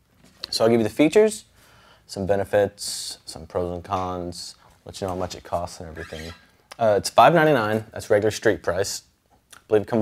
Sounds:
Speech

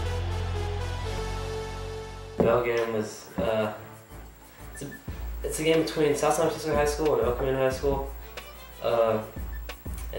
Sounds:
Music, Speech

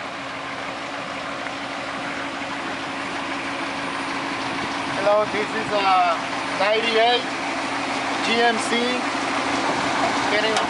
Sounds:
Vehicle, Speech, Truck

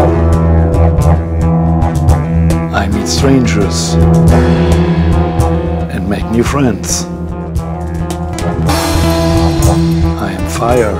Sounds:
Music, Speech

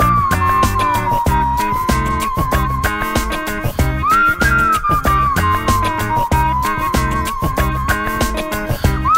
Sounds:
Music

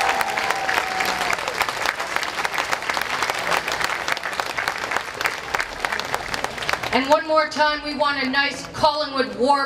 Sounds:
Applause

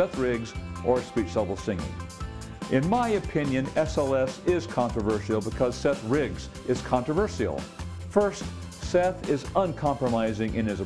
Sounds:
Speech, man speaking, Music

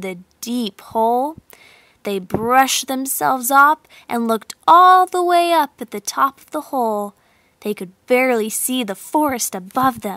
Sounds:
Speech

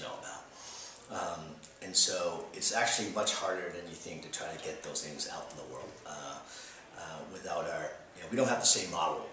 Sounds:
Speech

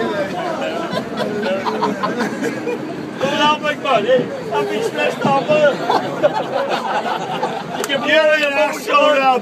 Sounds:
Male speech, Speech

